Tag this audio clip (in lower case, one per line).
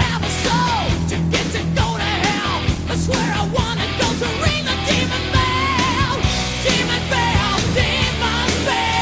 music